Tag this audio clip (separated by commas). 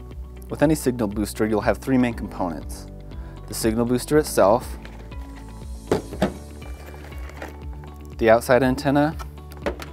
Speech, Music